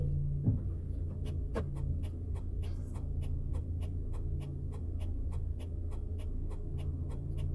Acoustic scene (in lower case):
car